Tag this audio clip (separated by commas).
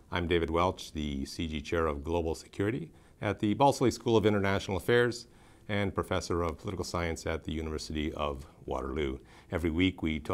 Speech